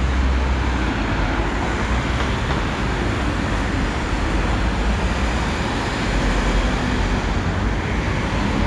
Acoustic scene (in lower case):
street